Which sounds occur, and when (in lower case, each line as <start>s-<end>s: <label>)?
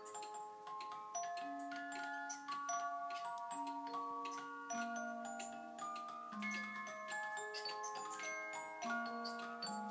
0.0s-9.9s: wind chime
9.6s-9.7s: clock